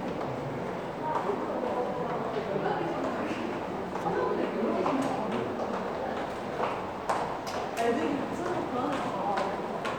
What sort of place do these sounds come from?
crowded indoor space